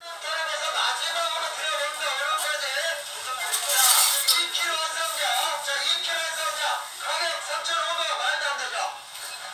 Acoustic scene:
crowded indoor space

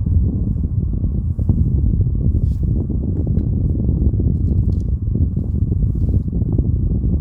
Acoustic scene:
car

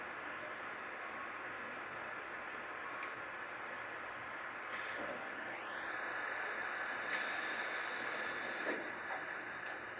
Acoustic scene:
subway train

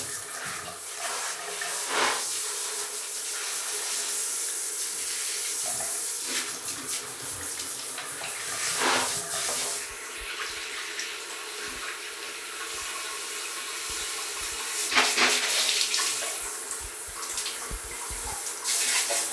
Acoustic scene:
restroom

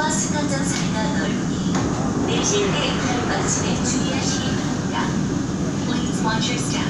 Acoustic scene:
subway train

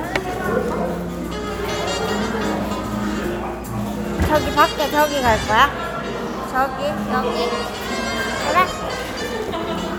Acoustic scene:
cafe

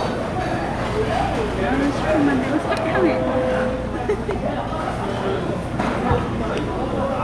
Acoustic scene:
restaurant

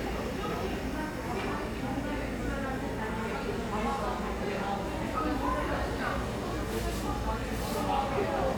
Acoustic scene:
crowded indoor space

